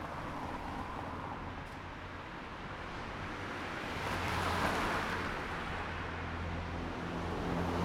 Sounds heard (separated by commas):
car, motorcycle, motorcycle engine accelerating, car wheels rolling